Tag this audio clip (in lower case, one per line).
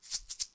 rattle (instrument)
music
musical instrument
percussion